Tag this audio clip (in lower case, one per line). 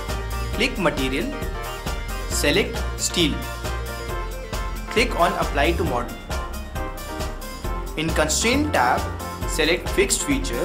music
speech